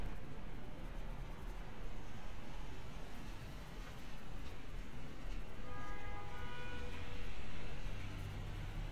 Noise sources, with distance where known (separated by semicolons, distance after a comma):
engine of unclear size; car horn, far